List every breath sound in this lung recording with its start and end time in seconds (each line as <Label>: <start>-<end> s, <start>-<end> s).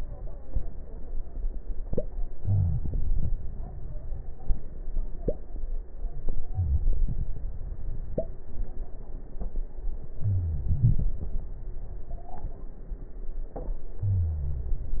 Inhalation: 2.36-2.81 s, 10.20-10.65 s
Exhalation: 10.66-11.11 s
Wheeze: 2.36-2.81 s, 6.54-6.84 s, 10.20-10.65 s, 14.08-14.96 s